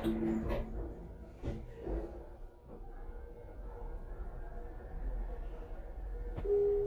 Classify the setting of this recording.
elevator